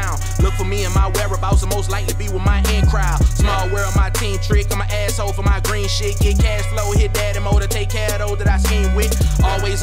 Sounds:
Music

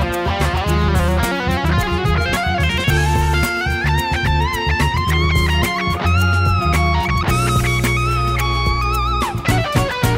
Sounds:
Plucked string instrument, Musical instrument, Music, playing electric guitar, Electric guitar, Guitar

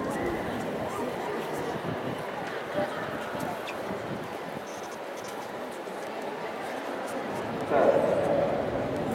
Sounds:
outside, urban or man-made, Speech

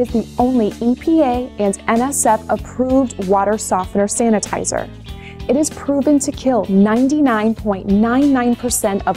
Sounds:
Speech, Music

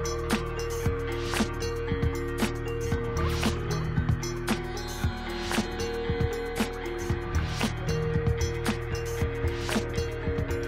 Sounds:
Music

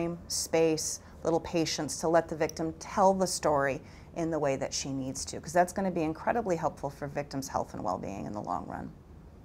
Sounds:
Speech

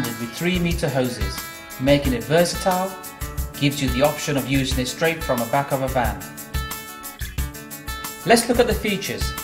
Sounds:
Music, Speech

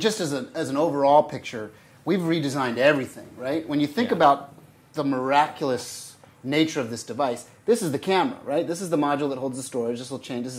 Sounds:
Speech

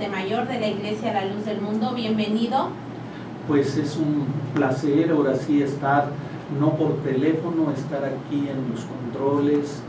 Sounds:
Speech

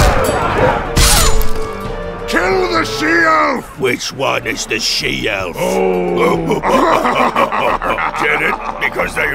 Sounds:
Speech, Music, outside, rural or natural

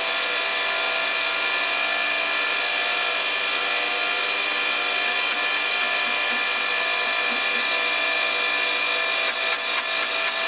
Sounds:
Tools

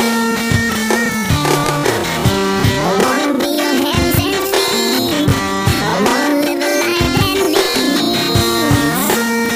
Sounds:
Music

